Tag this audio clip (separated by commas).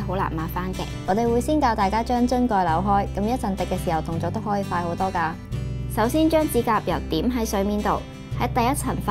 Music, Speech